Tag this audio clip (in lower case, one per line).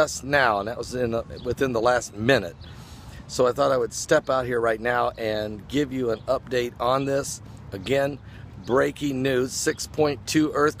speech